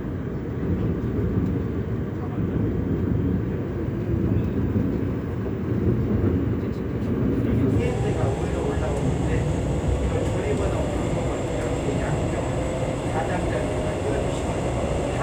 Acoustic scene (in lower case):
subway train